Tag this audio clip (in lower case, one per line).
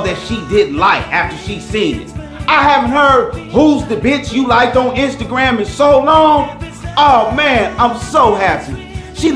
speech
music